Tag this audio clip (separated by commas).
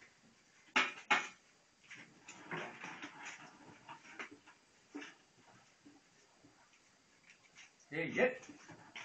Speech, outside, rural or natural